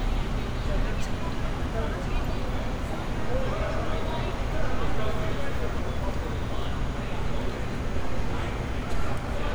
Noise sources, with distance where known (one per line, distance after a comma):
unidentified human voice